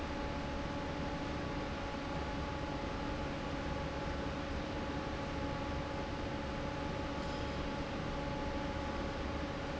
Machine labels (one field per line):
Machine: fan